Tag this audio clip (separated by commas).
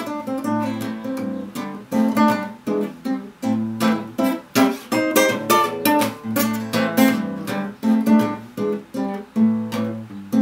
Music, Guitar, Musical instrument